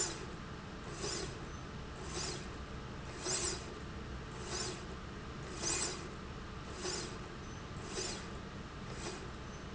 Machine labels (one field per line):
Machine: slide rail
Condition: normal